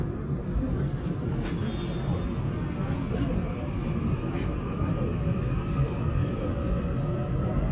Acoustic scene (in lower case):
subway train